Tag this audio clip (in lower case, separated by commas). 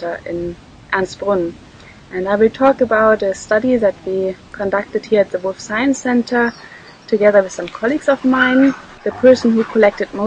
animal, speech, pets, dog